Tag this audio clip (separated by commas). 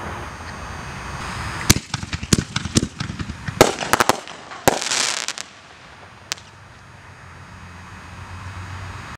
Fireworks, fireworks banging